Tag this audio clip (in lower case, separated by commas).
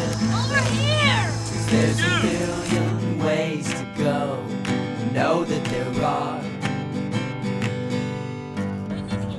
music, speech